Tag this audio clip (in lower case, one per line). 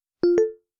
alarm
telephone